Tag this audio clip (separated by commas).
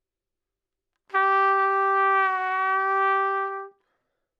Trumpet, Brass instrument, Musical instrument, Music